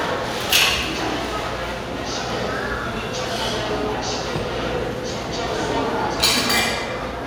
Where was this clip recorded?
in a restaurant